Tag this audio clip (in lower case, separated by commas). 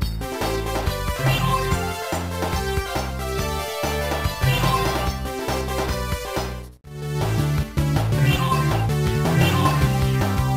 music